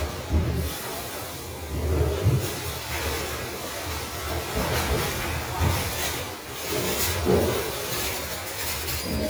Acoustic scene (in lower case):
restroom